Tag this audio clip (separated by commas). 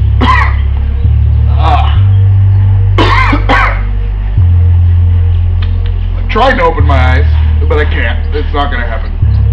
Speech, Music